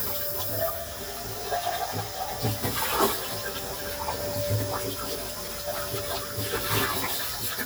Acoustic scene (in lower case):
kitchen